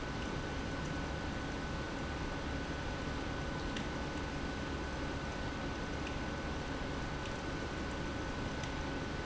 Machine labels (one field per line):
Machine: pump